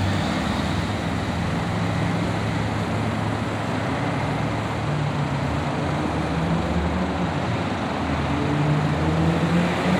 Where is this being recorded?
on a street